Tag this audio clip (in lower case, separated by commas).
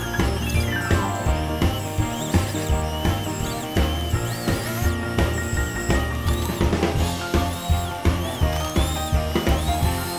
music